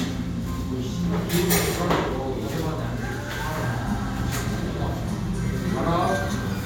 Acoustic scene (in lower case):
restaurant